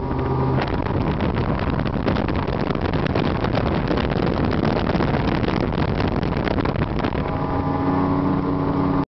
Wind gusting by as a large motor hums